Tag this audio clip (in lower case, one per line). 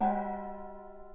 gong
percussion
musical instrument
music